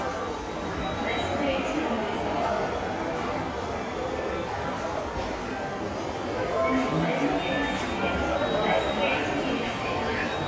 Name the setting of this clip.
subway station